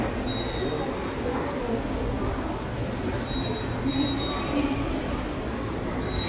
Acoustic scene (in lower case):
subway station